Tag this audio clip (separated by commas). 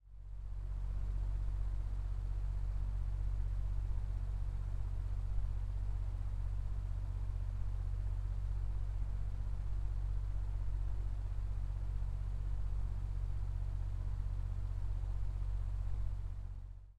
Mechanical fan, Mechanisms